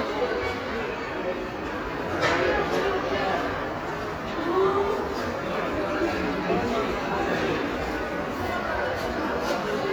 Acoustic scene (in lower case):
crowded indoor space